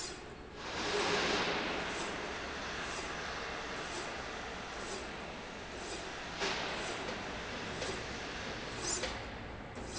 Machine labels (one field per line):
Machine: slide rail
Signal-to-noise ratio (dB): -6 dB